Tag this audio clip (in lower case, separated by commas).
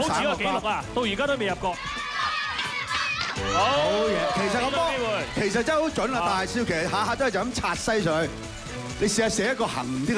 shot football